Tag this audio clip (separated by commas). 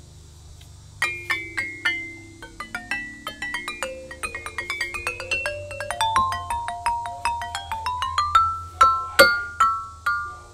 Glockenspiel, Mallet percussion, Marimba